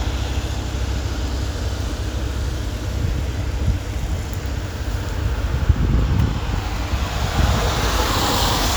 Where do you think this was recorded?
on a street